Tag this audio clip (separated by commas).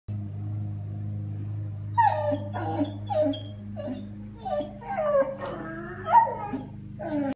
Animal, canids, pets, Dog